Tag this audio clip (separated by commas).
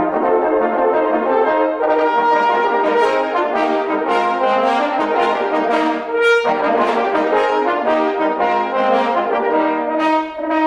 French horn, Music, Trombone, playing french horn